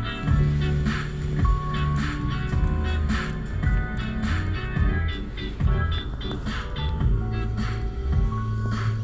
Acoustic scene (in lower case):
car